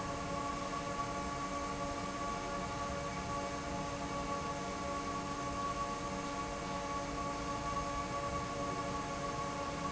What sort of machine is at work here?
fan